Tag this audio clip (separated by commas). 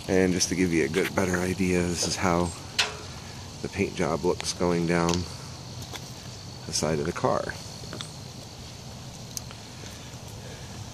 outside, rural or natural, Speech